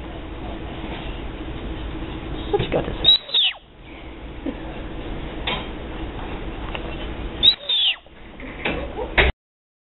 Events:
0.0s-9.3s: mechanisms
2.5s-3.1s: man speaking
3.0s-3.5s: animal
4.4s-4.6s: human sounds
5.5s-5.6s: generic impact sounds
6.7s-7.1s: generic impact sounds
7.4s-8.1s: animal
8.4s-8.8s: generic impact sounds
8.9s-9.2s: bark
9.2s-9.3s: generic impact sounds

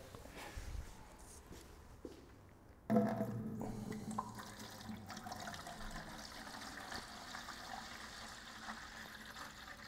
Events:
0.0s-9.8s: mechanisms
0.0s-0.5s: generic impact sounds
0.4s-1.0s: surface contact
1.1s-1.4s: generic impact sounds
1.5s-1.6s: generic impact sounds
1.6s-1.9s: surface contact
2.0s-2.2s: footsteps
2.2s-2.7s: generic impact sounds
2.9s-3.3s: generic impact sounds
3.9s-4.3s: drip
4.3s-9.8s: pour

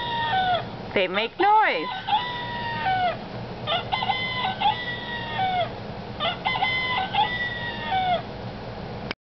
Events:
0.0s-0.6s: cock-a-doodle-doo
0.0s-9.1s: mechanisms
0.9s-1.3s: woman speaking
0.9s-1.3s: cock-a-doodle-doo
1.4s-3.1s: cock-a-doodle-doo
1.4s-2.0s: woman speaking
3.6s-5.7s: cock-a-doodle-doo
6.2s-8.3s: cock-a-doodle-doo
9.1s-9.1s: tick

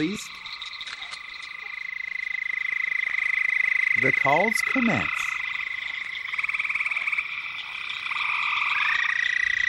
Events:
0.0s-9.6s: frog
0.0s-9.6s: insect
1.0s-1.2s: camera
4.7s-5.1s: male speech

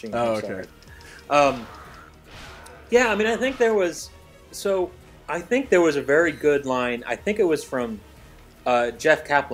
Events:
0.0s-0.1s: tick
0.0s-0.6s: man speaking
0.0s-9.5s: conversation
0.0s-9.5s: music
0.0s-9.5s: video game sound
0.2s-0.3s: tick
0.6s-0.7s: tick
0.8s-0.8s: tick
0.8s-1.2s: breathing
0.9s-1.0s: tick
1.1s-1.2s: tick
1.3s-1.7s: man speaking
1.5s-2.1s: groan
1.7s-1.8s: tick
1.9s-1.9s: tick
2.1s-2.1s: tick
2.3s-2.9s: groan
2.6s-2.7s: tick
2.9s-4.1s: man speaking
4.5s-4.9s: man speaking
5.3s-8.0s: man speaking
8.6s-9.5s: man speaking

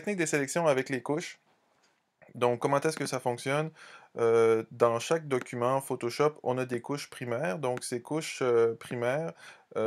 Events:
0.0s-9.8s: background noise
0.0s-1.3s: man speaking
2.2s-3.6s: man speaking
3.7s-4.1s: breathing
4.2s-9.3s: man speaking
9.4s-9.6s: breathing
9.7s-9.8s: man speaking

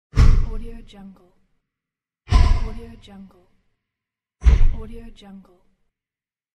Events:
0.1s-1.6s: sound effect
0.1s-1.2s: woman speaking
2.2s-3.7s: sound effect
2.6s-3.5s: woman speaking
4.4s-5.7s: sound effect
4.7s-5.7s: woman speaking

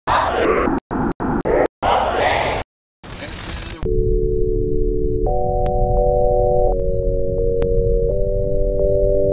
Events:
0.0s-0.8s: noise
0.9s-1.6s: noise
1.8s-2.6s: noise
3.0s-3.8s: noise
3.2s-3.8s: man speaking
3.8s-9.3s: music

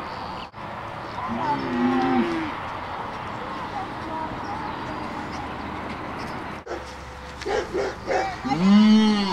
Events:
0.0s-9.3s: background noise
0.3s-0.5s: bird call
1.0s-1.6s: bird call
1.1s-2.5s: child speech
1.2s-2.5s: moo
1.9s-2.0s: tick
2.2s-2.3s: tick
2.6s-6.6s: bird call
3.3s-5.5s: child speech
7.2s-7.5s: tick
7.4s-8.3s: bark
7.7s-8.0s: bird call
8.1s-8.6s: child speech
8.4s-9.3s: moo

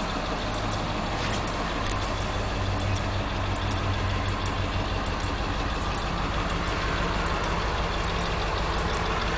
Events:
0.0s-9.3s: heavy engine (low frequency)
1.1s-1.4s: surface contact
1.8s-2.0s: generic impact sounds
2.9s-3.0s: generic impact sounds
3.6s-3.7s: generic impact sounds
4.4s-4.5s: generic impact sounds
5.2s-5.2s: generic impact sounds
8.2s-8.3s: generic impact sounds
8.9s-9.0s: generic impact sounds

